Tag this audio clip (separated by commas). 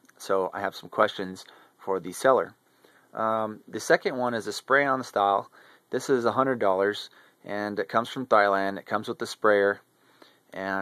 Speech